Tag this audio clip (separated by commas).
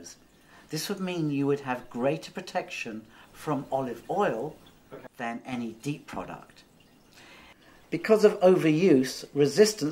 Speech